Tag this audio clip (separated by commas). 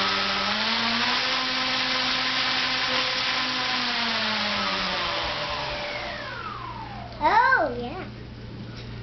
Aircraft, Speech